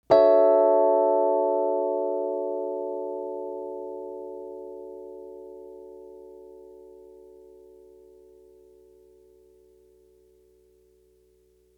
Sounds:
keyboard (musical), music, piano, musical instrument

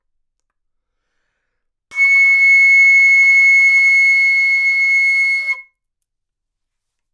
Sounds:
woodwind instrument, music, musical instrument

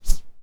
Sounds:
whoosh

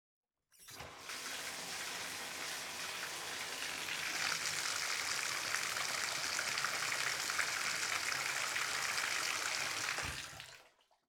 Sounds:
bathtub (filling or washing), domestic sounds

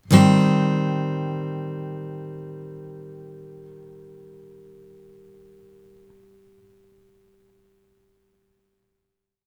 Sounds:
acoustic guitar, guitar, plucked string instrument, musical instrument, music

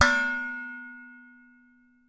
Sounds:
domestic sounds, dishes, pots and pans

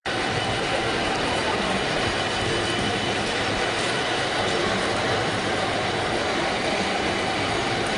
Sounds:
vehicle

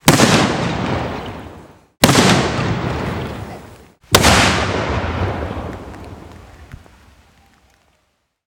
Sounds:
boom, explosion

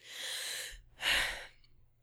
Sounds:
sigh, human voice

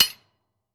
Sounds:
tools

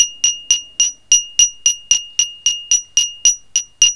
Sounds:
glass

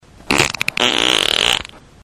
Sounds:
fart

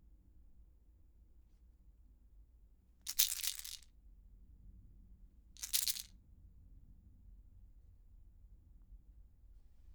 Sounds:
rattle

